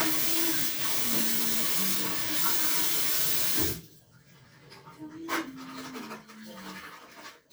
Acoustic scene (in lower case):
restroom